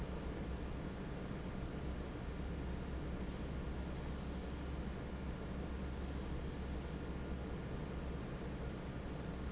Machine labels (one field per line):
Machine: fan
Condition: normal